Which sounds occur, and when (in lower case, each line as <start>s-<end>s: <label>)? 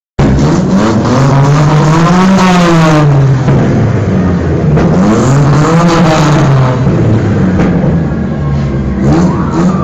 0.2s-3.0s: vroom
0.2s-9.8s: medium engine (mid frequency)
4.7s-6.9s: vroom
7.5s-7.9s: vroom
8.5s-8.7s: vroom
9.0s-9.8s: vroom